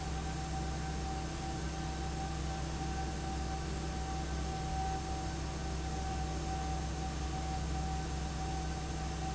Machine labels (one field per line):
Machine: fan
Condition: abnormal